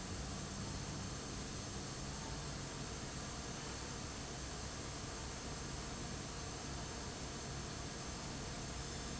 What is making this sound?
fan